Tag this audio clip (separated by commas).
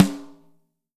Musical instrument, Music, Drum, Percussion, Snare drum